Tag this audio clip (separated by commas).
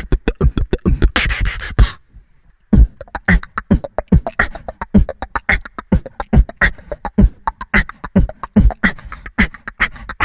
beat boxing